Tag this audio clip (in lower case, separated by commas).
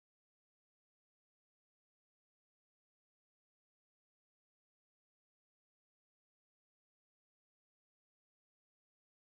silence